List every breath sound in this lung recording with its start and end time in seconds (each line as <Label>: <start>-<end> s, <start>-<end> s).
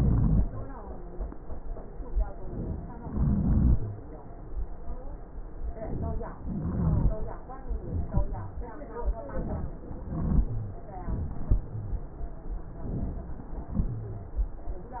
Inhalation: 3.02-4.02 s, 6.41-7.25 s, 10.02-10.85 s
Rhonchi: 0.00-0.42 s, 3.02-4.02 s, 6.41-7.25 s, 10.02-10.85 s